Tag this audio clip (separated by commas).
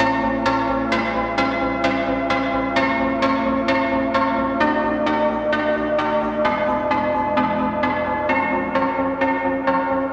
Music